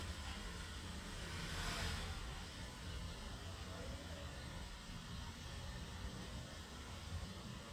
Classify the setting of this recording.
residential area